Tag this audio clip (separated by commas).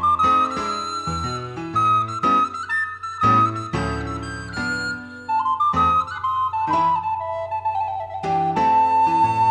Music, Flute